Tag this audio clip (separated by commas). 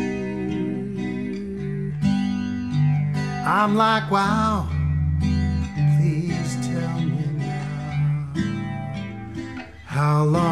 Bass guitar, Music, Musical instrument, Guitar, Plucked string instrument